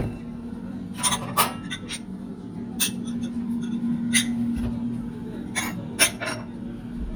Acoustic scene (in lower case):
kitchen